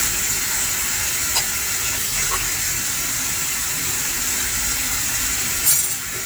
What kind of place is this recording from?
kitchen